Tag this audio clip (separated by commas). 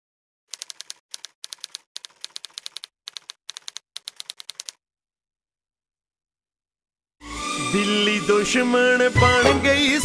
Music